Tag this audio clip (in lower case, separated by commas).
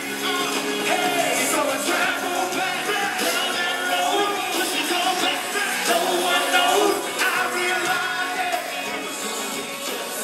male singing, music